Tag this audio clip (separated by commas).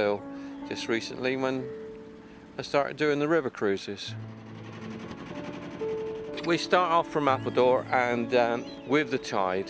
speedboat, Music, Speech